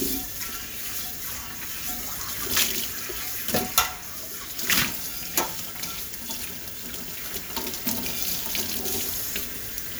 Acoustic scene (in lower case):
kitchen